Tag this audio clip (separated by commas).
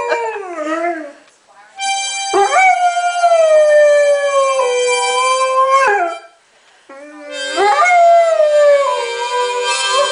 Animal, Domestic animals, Music, Howl, Harmonica, Dog